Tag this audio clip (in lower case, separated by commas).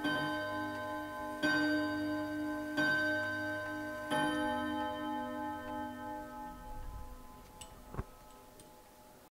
tick-tock